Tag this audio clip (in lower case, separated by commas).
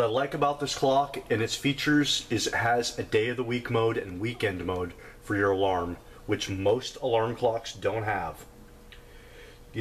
speech, tick-tock